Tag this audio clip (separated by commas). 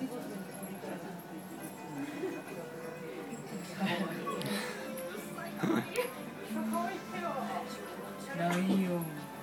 Music, Speech